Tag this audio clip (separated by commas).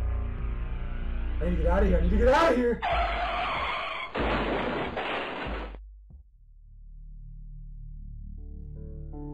Speech, Music